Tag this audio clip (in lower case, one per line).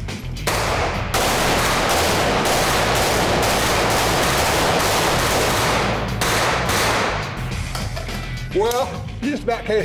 machine gun shooting